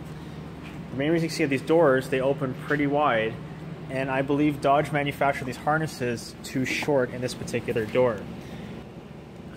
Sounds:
inside a large room or hall, speech

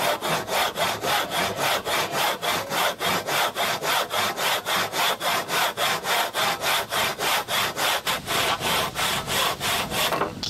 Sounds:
wood, tools

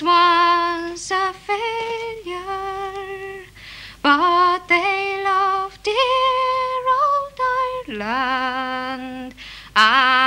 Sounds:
inside a small room, singing

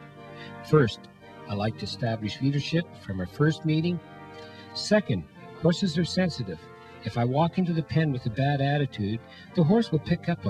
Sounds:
music, speech

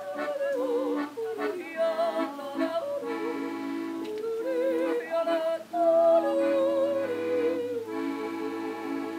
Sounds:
music, yodeling

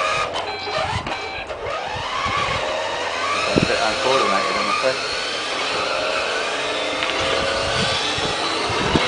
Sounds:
speech, car

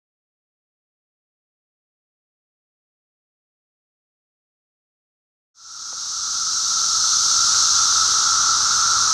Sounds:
silence, outside, rural or natural

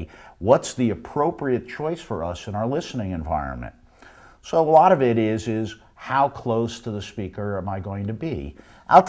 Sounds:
speech

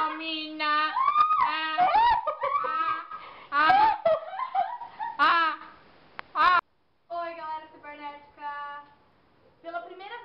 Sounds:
speech, giggle

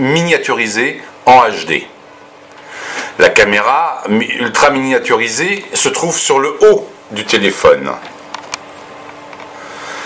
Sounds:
speech

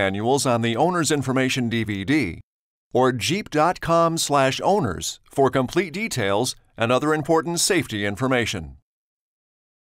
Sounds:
speech

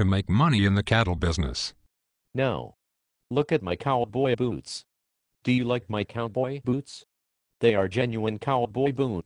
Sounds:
speech, conversation

